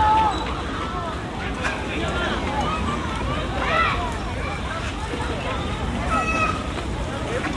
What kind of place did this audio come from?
park